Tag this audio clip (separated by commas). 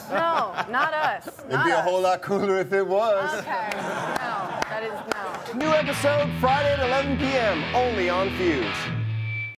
Speech, Music, Soundtrack music